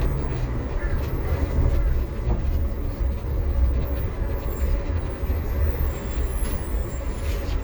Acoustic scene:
bus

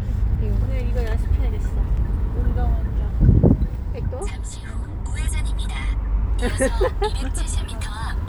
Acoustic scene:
car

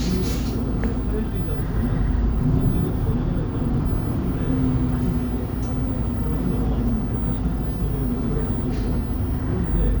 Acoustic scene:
bus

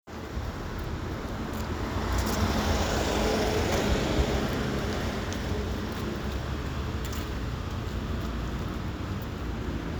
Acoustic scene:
street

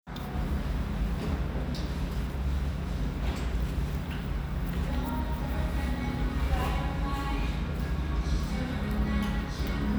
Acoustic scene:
restaurant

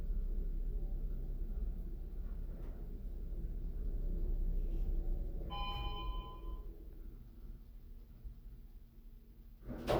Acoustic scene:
elevator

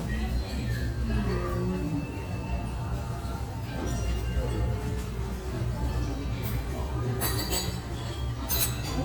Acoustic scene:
restaurant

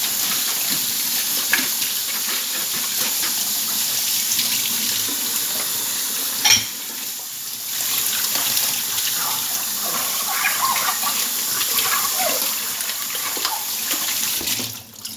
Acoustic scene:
kitchen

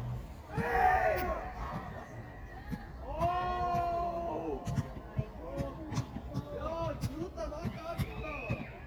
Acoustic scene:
park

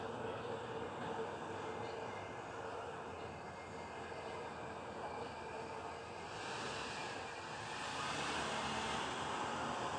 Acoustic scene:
residential area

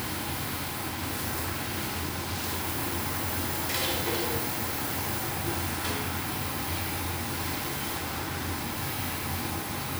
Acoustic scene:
restaurant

